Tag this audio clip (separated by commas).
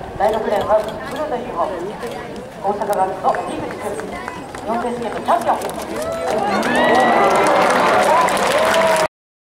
Speech, man speaking